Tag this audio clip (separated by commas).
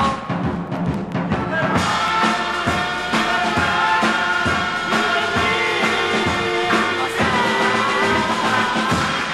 Music